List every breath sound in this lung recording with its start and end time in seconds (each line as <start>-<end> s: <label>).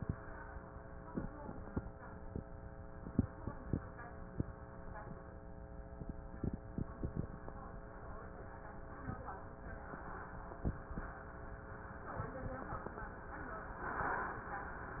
13.67-14.55 s: inhalation